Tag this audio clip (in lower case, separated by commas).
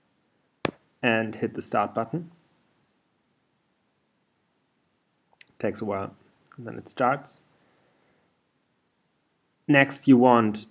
inside a small room, speech